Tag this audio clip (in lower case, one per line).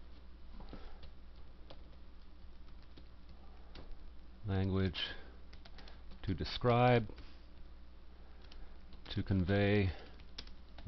speech